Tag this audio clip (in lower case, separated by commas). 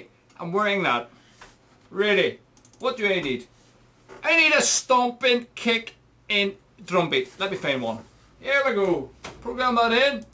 speech